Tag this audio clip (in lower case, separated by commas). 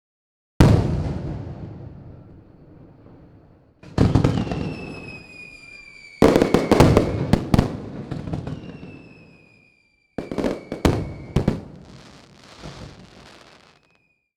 fireworks, explosion